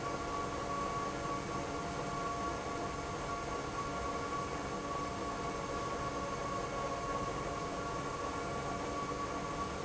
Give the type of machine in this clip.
pump